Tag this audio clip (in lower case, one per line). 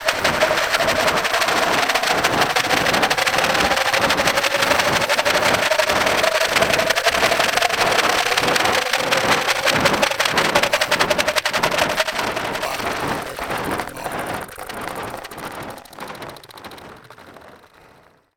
rattle